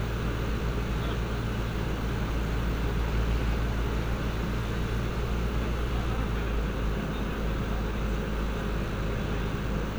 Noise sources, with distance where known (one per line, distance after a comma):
engine of unclear size
person or small group talking